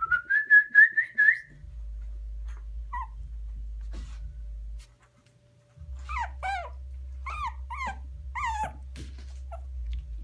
A person whistles and an animal whines